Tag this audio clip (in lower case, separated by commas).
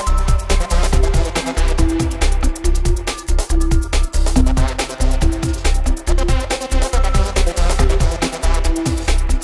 music